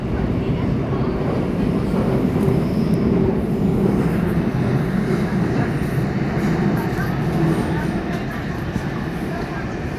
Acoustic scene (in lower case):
subway train